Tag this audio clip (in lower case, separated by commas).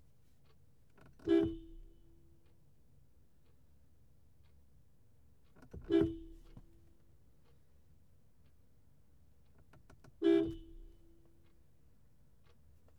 car, alarm, honking, vehicle, motor vehicle (road)